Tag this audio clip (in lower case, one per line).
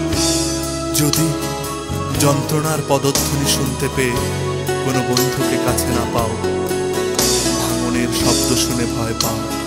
music
speech